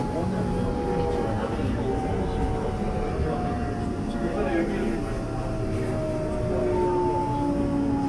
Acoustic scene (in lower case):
subway train